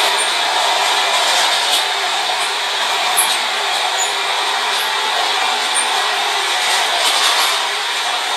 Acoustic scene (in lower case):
subway train